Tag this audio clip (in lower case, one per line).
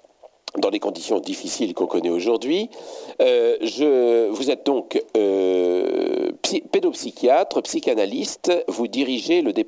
speech